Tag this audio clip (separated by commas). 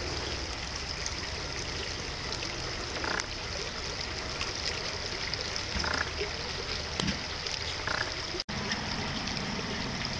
Duck